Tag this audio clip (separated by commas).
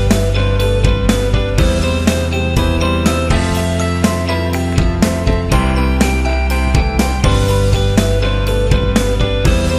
Music